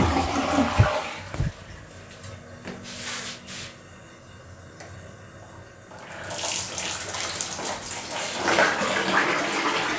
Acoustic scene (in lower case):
restroom